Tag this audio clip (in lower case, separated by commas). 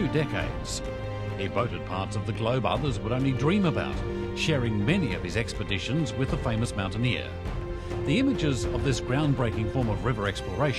music, speech